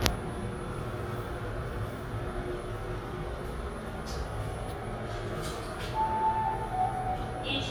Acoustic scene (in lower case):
elevator